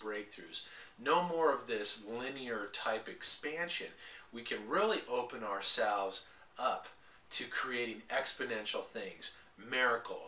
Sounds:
speech

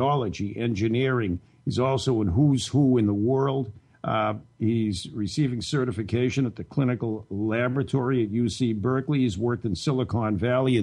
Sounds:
speech

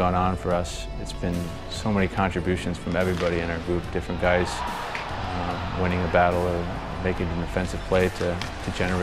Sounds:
speech, music

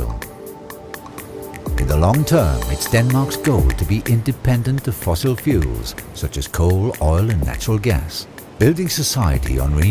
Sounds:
music, speech

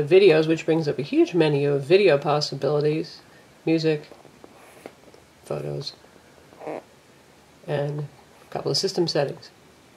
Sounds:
inside a small room, speech

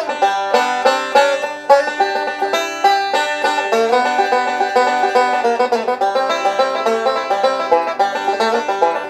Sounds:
music, playing banjo, country, banjo, musical instrument, bluegrass

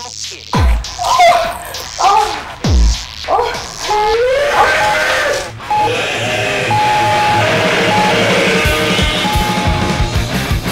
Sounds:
music

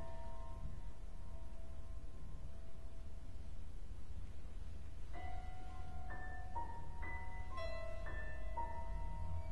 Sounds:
music, musical instrument, violin

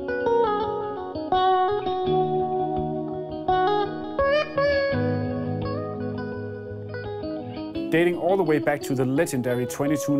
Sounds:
plucked string instrument, guitar, musical instrument, speech, music

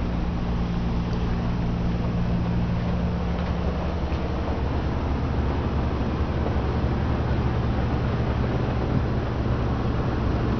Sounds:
driving buses, vehicle, bus

